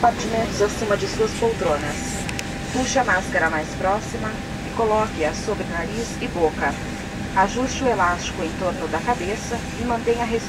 Woman giving a speech